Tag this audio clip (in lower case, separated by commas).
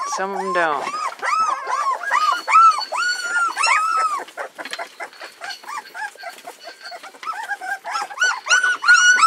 dog, domestic animals, speech, animal